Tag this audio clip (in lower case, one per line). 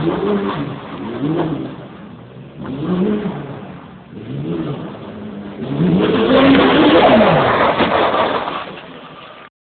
vehicle
vroom